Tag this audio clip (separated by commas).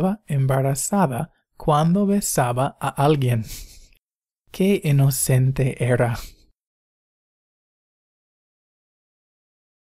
Silence, Speech